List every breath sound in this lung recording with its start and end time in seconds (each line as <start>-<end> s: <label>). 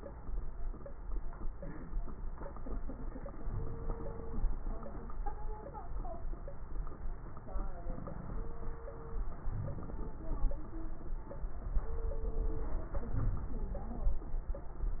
3.39-4.49 s: inhalation
3.39-4.49 s: crackles
9.47-9.99 s: crackles
13.01-14.23 s: inhalation
13.01-14.23 s: crackles